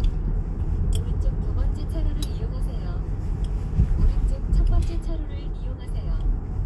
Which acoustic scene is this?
car